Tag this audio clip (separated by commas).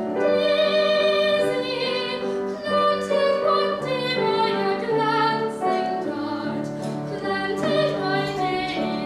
Music